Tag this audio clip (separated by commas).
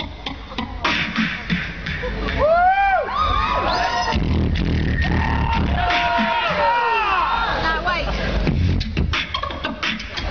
Speech